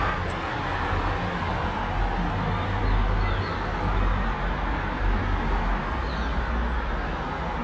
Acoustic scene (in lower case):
street